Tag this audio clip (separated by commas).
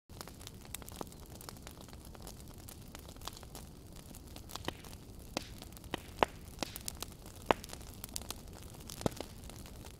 fire crackling